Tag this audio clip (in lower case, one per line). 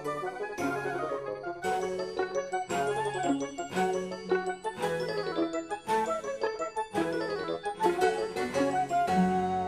ding-dong
music